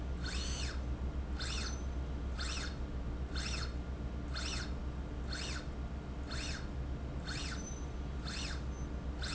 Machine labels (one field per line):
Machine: slide rail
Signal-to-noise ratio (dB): -6 dB